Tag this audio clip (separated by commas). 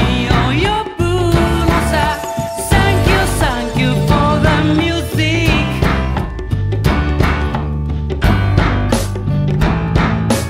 Music